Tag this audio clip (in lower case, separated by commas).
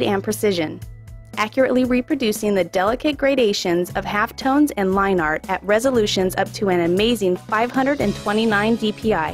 speech, music